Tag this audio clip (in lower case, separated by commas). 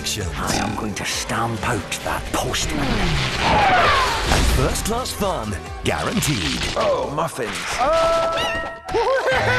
music, speech